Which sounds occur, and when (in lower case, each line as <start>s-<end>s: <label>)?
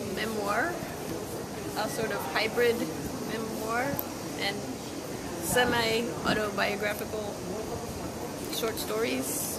0.0s-9.5s: mechanisms
0.1s-0.8s: man speaking
1.0s-1.2s: crumpling
1.7s-2.7s: man speaking
3.3s-4.0s: man speaking
3.9s-4.2s: crumpling
4.3s-5.1s: human sounds
4.3s-4.5s: man speaking
5.4s-6.0s: man speaking
6.3s-7.3s: man speaking
6.9s-7.2s: crumpling
7.1s-8.5s: human sounds
8.4s-8.8s: crumpling
8.4s-9.3s: man speaking